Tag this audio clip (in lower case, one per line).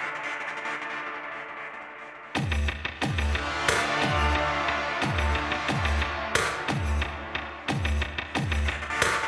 music